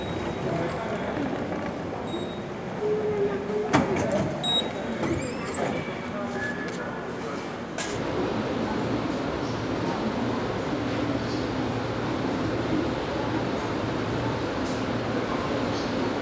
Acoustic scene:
subway station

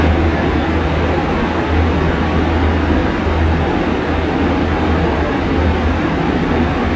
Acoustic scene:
subway train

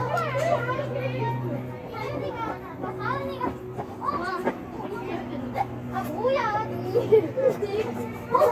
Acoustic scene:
residential area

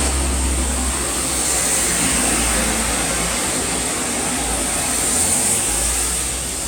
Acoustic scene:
street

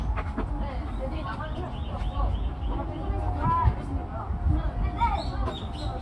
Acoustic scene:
park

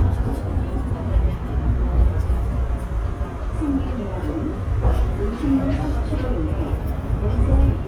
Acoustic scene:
subway train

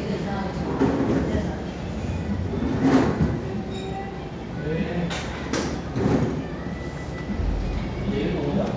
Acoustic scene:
restaurant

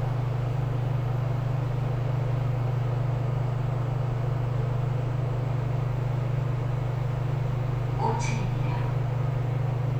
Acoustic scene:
elevator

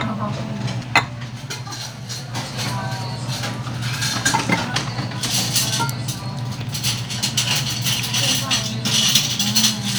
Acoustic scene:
restaurant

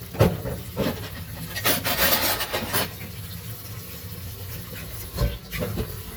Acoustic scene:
kitchen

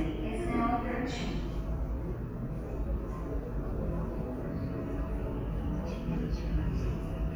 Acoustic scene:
subway station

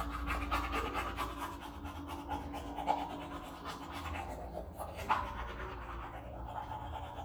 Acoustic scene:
restroom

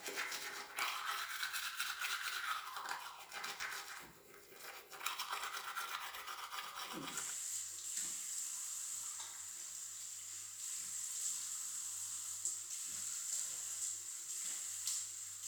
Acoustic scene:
restroom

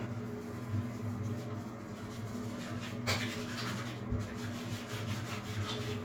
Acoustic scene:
restroom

